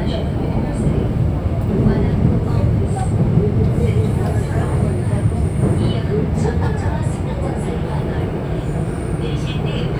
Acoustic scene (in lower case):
subway train